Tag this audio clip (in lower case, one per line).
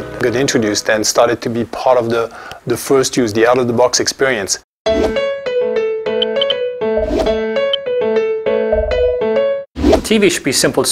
inside a small room
speech
music